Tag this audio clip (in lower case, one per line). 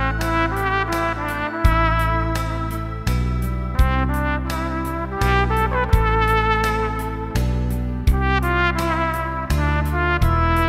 playing trumpet